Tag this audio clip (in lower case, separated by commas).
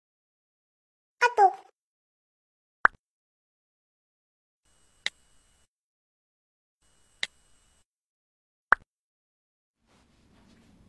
speech, plop